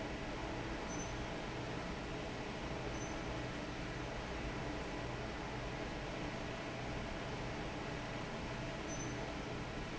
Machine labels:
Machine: fan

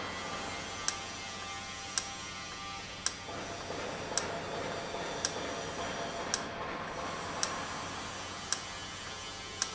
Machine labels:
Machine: valve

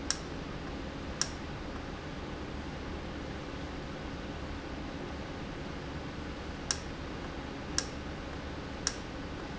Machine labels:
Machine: valve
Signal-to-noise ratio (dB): -6 dB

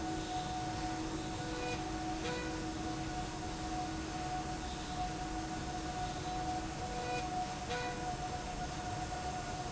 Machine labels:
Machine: slide rail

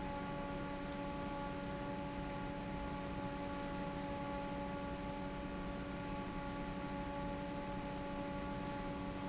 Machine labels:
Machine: fan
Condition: normal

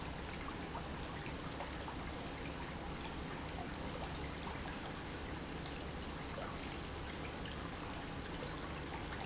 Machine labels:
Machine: pump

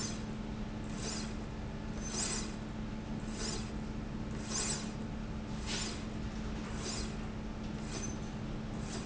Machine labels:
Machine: slide rail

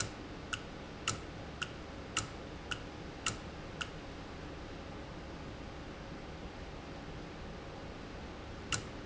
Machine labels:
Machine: valve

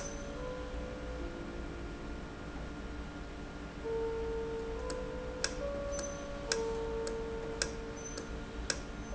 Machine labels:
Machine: valve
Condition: normal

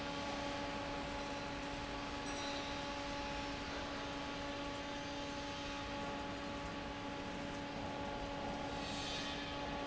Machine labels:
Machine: fan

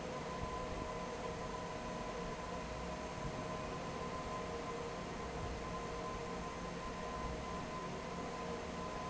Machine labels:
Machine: fan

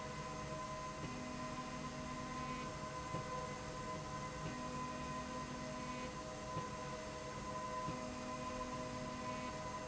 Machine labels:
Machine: slide rail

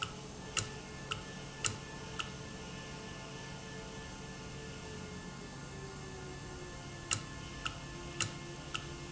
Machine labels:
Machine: valve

